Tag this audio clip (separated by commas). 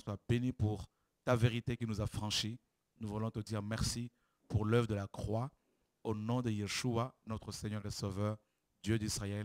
Speech